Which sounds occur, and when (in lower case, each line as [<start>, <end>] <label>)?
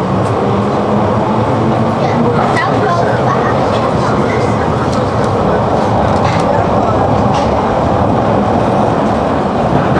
[0.00, 9.95] underground
[0.23, 0.38] generic impact sounds
[2.56, 3.63] speech
[3.69, 4.12] generic impact sounds
[4.32, 4.64] generic impact sounds
[4.93, 5.35] generic impact sounds
[5.72, 6.63] generic impact sounds
[7.32, 7.58] generic impact sounds